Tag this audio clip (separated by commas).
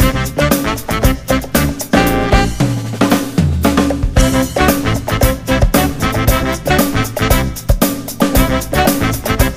Music